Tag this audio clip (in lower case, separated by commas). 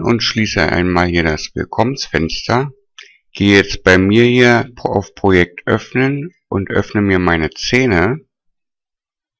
speech